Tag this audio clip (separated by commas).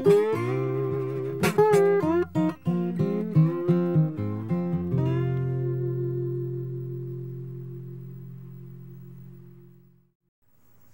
slide guitar